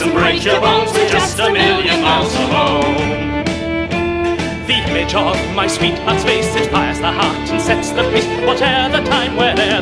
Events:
0.0s-9.8s: music
0.1s-3.3s: male singing
0.1s-3.2s: female singing
4.6s-9.8s: male singing

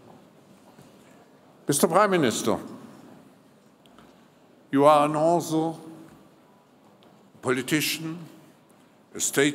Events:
0.0s-9.5s: mechanisms
1.6s-2.6s: man speaking
3.8s-4.1s: generic impact sounds
4.7s-5.8s: man speaking
7.0s-7.1s: generic impact sounds
7.4s-8.3s: man speaking
9.1s-9.5s: man speaking

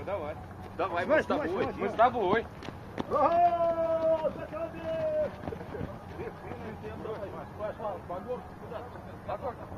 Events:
0.0s-0.3s: man speaking
0.0s-9.7s: conversation
0.0s-9.7s: wind
0.5s-9.7s: run
0.7s-2.4s: man speaking
3.1s-4.3s: shout
4.3s-5.2s: man speaking
5.5s-5.8s: man speaking
6.1s-8.4s: man speaking
8.7s-8.8s: man speaking
9.2s-9.5s: man speaking

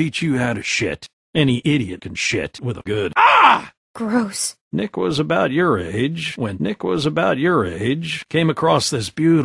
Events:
0.0s-9.4s: conversation
3.9s-4.5s: woman speaking
4.7s-9.4s: male speech

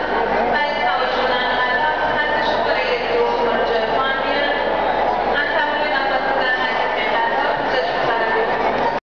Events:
0.0s-9.0s: crowd
0.4s-4.7s: female speech
5.2s-8.2s: female speech

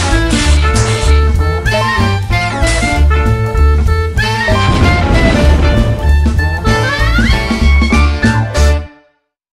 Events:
0.0s-9.4s: music
1.3s-1.4s: tick
2.2s-2.3s: tick
3.4s-3.5s: tick

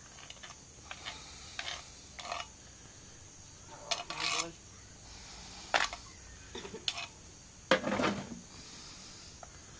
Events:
0.0s-9.7s: background noise
0.1s-0.5s: generic impact sounds
0.8s-1.1s: generic impact sounds
0.8s-2.2s: breathing
1.5s-1.8s: generic impact sounds
2.1s-2.4s: generic impact sounds
2.6s-3.3s: breathing
3.7s-4.5s: male speech
3.9s-4.5s: generic impact sounds
5.0s-6.2s: breathing
5.7s-5.9s: generic impact sounds
6.5s-6.8s: cough
6.5s-7.1s: generic impact sounds
7.7s-8.4s: generic impact sounds
8.5s-9.7s: breathing
9.4s-9.5s: tick

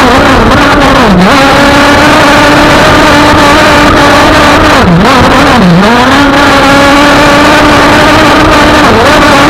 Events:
0.0s-9.4s: speedboat
0.0s-9.4s: water

